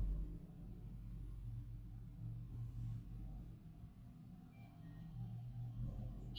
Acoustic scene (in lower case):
elevator